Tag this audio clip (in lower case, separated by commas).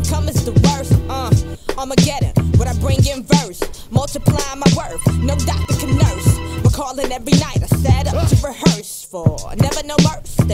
music